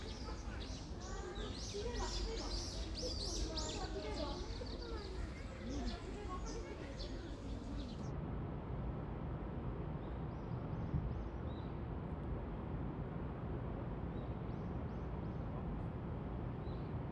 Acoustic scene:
park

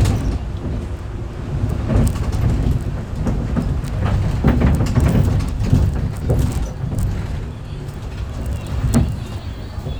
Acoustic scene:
bus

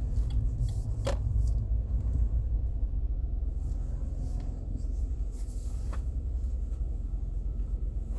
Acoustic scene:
car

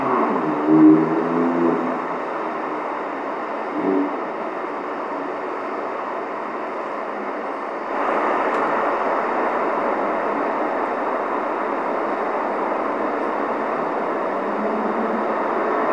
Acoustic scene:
street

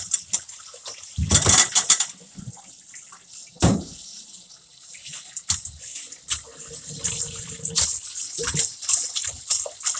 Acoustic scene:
kitchen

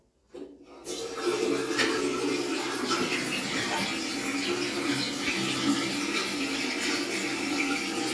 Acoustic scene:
restroom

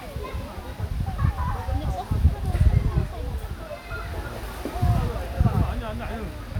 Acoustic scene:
park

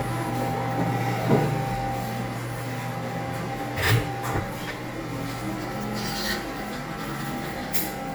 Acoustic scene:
cafe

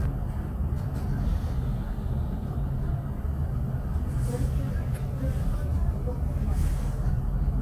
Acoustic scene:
bus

